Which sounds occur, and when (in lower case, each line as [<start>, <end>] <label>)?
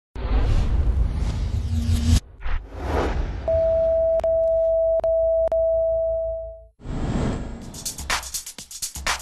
[0.13, 4.68] sound effect
[3.18, 6.67] rumble
[3.46, 6.69] bleep
[6.77, 8.14] sound effect
[7.55, 9.21] music